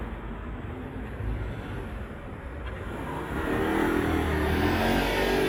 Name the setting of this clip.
street